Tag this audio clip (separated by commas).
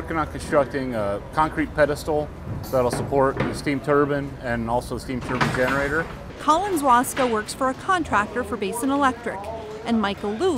Speech